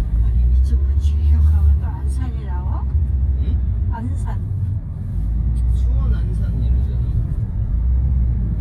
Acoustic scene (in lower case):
car